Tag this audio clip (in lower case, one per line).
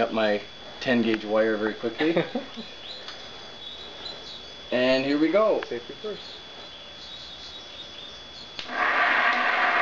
engine